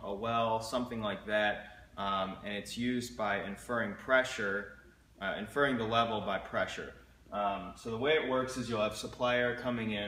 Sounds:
Speech

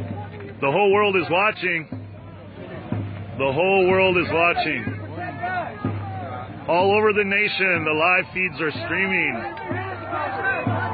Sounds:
Speech, Music

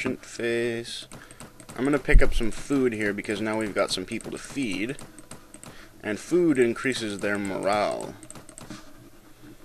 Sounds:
Speech

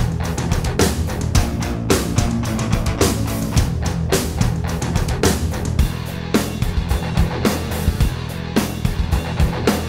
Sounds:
Music

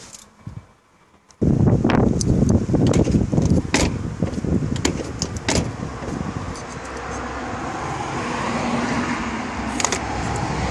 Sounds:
Vehicle, Door, Car

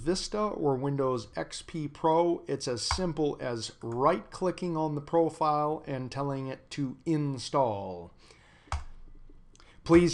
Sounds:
Speech

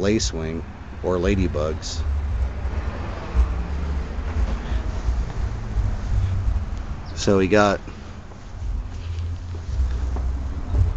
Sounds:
outside, urban or man-made, Speech

